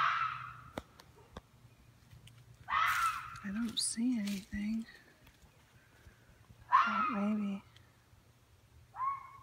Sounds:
fox barking

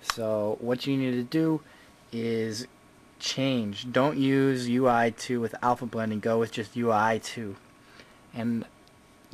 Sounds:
speech

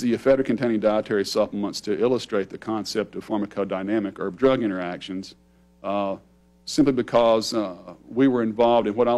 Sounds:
speech

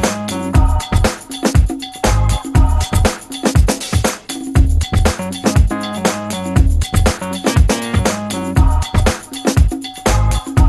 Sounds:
music

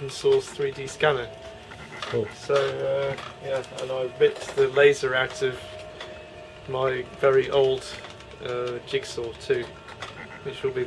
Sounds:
speech

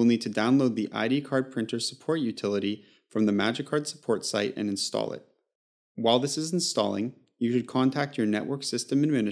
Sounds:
speech

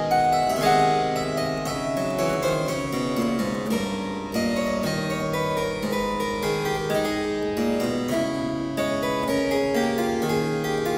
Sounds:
playing harpsichord

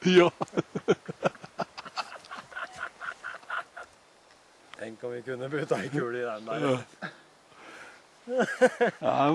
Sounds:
speech

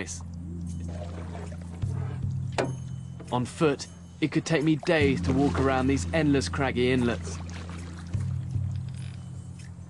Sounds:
music
speech

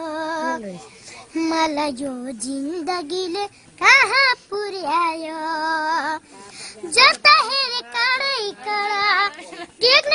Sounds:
speech
child singing

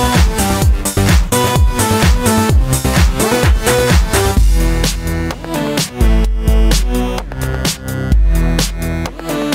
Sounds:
music

